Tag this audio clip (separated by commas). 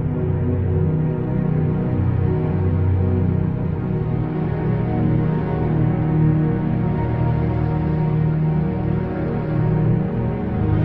Music